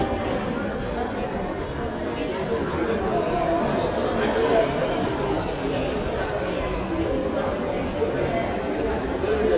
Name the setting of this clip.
crowded indoor space